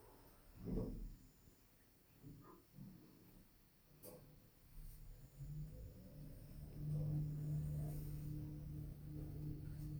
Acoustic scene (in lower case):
elevator